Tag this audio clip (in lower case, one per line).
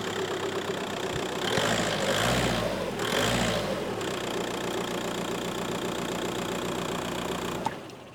engine